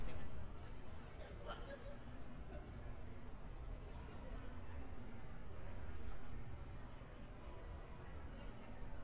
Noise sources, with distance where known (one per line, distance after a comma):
person or small group talking, near